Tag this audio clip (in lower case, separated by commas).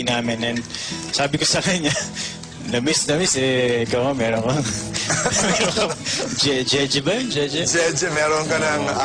speech, music